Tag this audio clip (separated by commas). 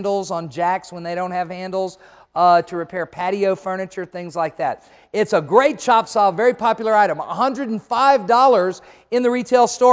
Speech